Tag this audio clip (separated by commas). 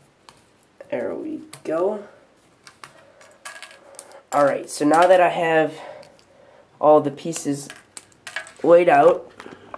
Speech